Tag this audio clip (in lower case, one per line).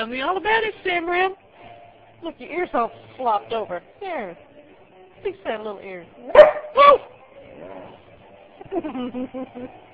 speech
canids
dog
animal
domestic animals
music